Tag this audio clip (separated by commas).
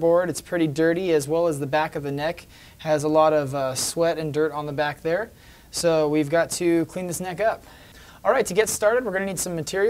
Speech